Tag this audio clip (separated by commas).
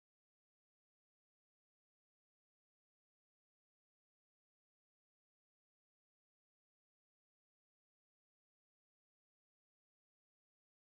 swimming